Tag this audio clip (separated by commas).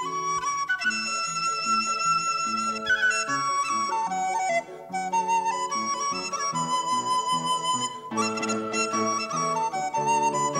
Music, playing flute, Flute